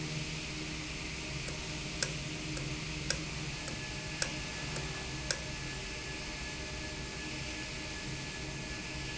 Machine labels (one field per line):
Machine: valve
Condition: normal